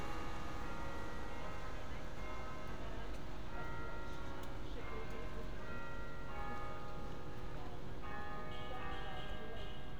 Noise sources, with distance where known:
music from an unclear source

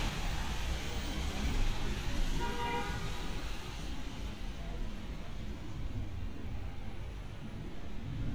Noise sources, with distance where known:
car horn, far

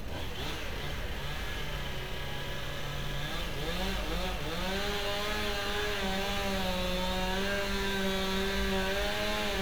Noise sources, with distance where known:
chainsaw

